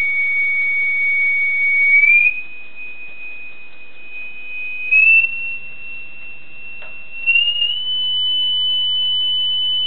Several beeps are heard increasing in octave